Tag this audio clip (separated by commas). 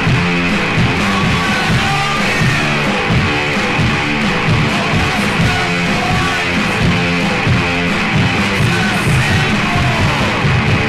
Music